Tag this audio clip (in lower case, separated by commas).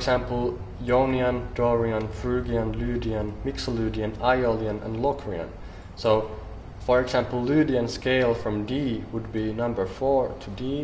speech